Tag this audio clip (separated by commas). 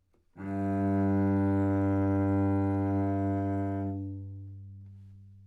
Musical instrument, Music, Bowed string instrument